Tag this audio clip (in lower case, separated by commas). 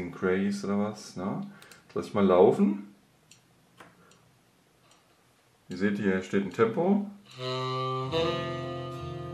metronome